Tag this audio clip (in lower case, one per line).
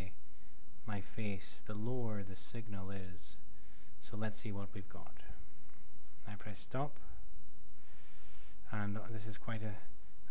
speech